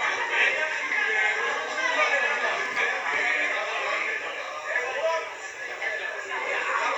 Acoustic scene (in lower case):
crowded indoor space